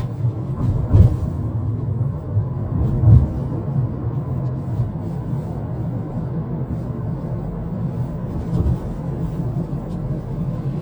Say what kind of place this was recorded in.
car